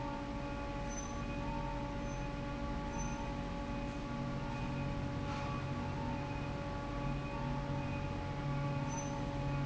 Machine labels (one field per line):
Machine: fan